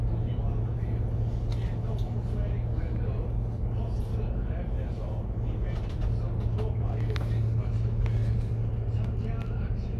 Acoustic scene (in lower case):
bus